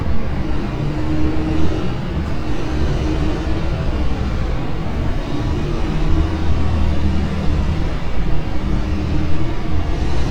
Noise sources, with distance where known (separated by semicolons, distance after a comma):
engine of unclear size, near